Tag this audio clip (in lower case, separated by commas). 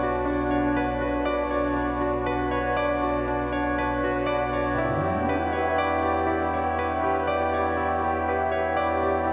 music